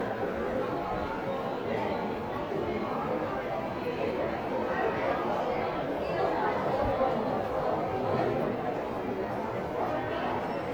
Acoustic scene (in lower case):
crowded indoor space